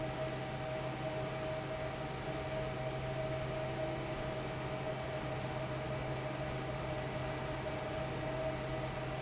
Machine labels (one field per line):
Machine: fan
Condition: normal